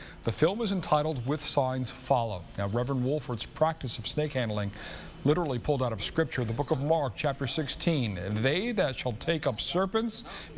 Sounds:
speech

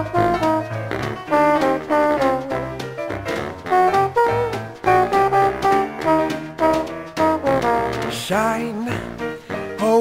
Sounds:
brass instrument
french horn

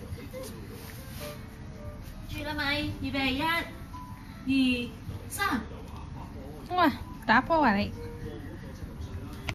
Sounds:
music
speech

